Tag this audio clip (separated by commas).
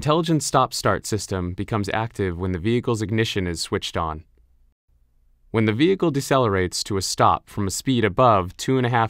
Speech